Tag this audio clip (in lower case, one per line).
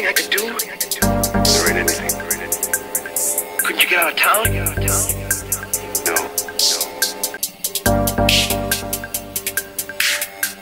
music
speech